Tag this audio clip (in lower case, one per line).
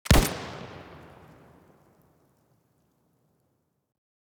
explosion